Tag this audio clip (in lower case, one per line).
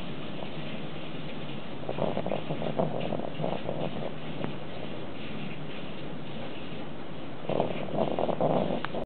animal
domestic animals